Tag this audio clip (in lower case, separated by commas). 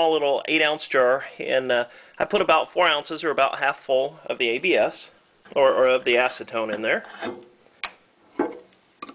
speech